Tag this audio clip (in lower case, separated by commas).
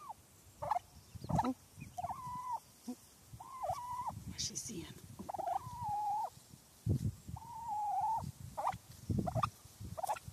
turkey gobbling